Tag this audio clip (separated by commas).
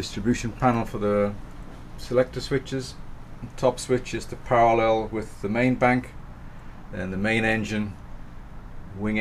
Speech